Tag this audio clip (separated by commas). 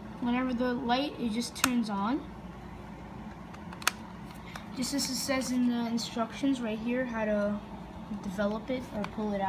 Speech